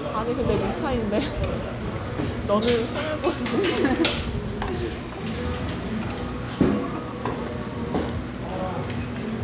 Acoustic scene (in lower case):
restaurant